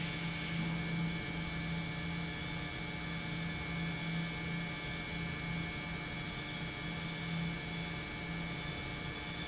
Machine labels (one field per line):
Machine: pump